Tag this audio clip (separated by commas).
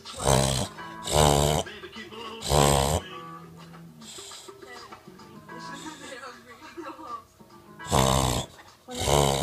pets, Speech, Dog, Music, Animal